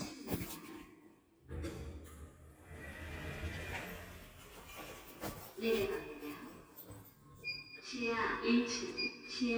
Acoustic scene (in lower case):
elevator